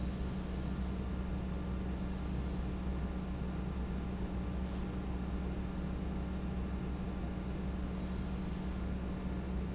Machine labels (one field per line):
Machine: fan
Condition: abnormal